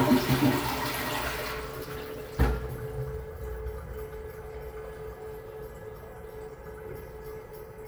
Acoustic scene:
restroom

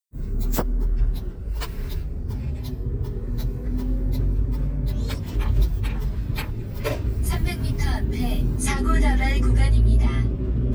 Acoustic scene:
car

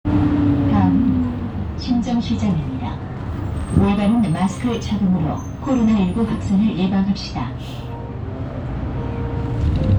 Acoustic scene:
bus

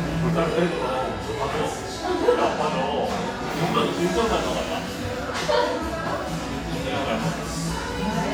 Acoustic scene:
cafe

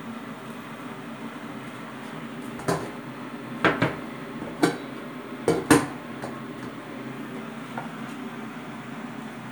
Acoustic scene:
kitchen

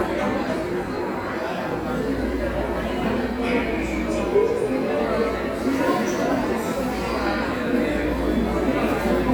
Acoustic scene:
cafe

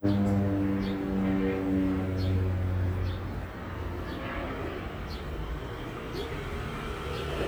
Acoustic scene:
residential area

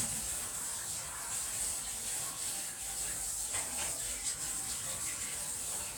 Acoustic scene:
kitchen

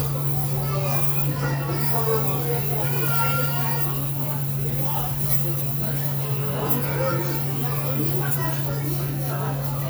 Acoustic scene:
restaurant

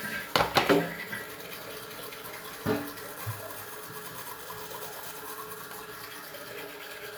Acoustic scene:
restroom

